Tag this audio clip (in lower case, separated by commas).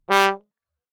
brass instrument, musical instrument, music